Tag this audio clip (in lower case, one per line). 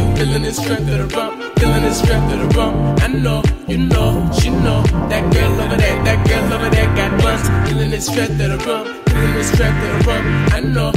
reggae
music